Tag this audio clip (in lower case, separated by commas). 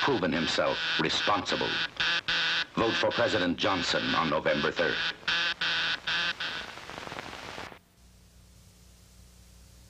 speech